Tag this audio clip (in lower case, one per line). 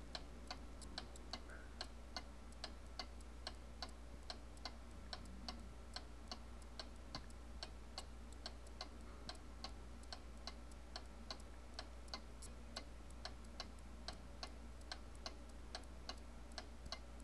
clock
mechanisms